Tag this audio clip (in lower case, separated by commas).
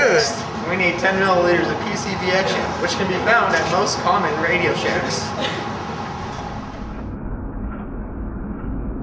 speech